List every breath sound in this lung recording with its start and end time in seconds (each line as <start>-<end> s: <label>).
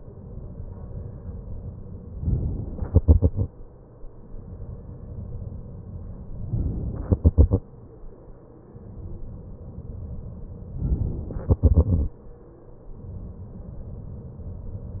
2.17-2.87 s: inhalation
2.87-4.07 s: exhalation
6.50-7.09 s: inhalation
7.09-8.32 s: exhalation
10.78-11.40 s: inhalation
11.40-12.94 s: exhalation